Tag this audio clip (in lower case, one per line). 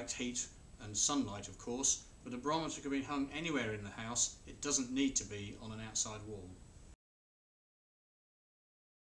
speech